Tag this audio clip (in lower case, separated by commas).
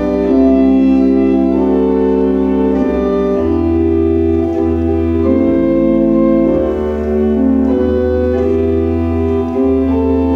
piano, musical instrument, music, keyboard (musical)